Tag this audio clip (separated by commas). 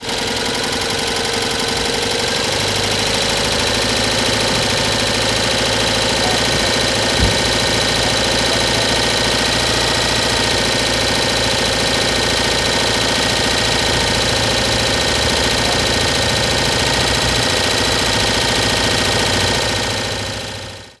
Engine, Idling